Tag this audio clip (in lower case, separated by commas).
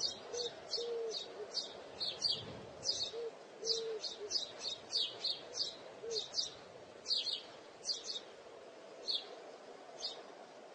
bird chirping